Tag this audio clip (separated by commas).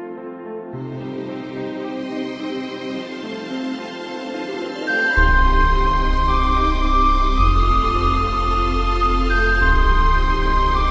Background music